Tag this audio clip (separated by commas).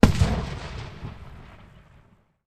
Fireworks, Explosion